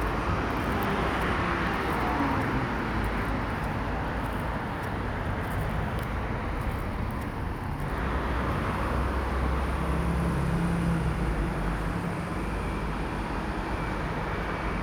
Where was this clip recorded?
on a street